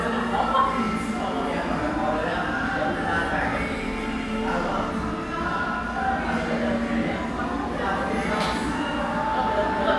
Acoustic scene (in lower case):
crowded indoor space